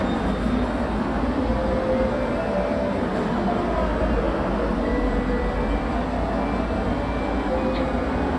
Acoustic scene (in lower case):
subway station